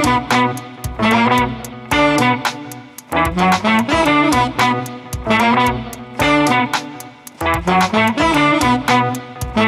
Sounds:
Electric guitar

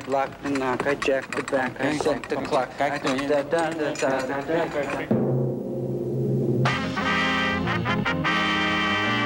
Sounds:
Music, Speech, Timpani

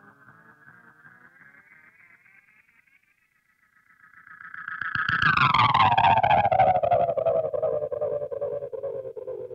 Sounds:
Effects unit, Music

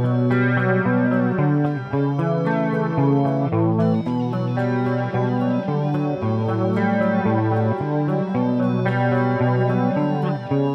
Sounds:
Strum, Musical instrument, Music, Plucked string instrument, Electric guitar, Guitar

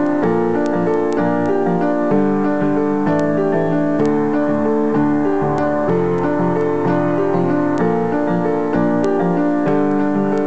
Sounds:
Music

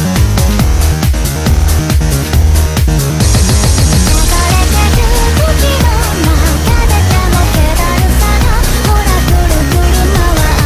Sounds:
Music

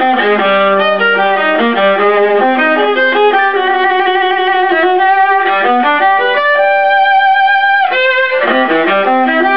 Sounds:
Violin, Bowed string instrument

